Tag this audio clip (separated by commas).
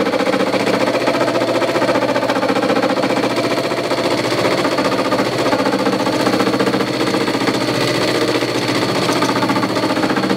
inside a small room, Tools